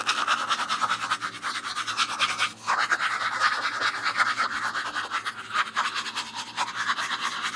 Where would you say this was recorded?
in a restroom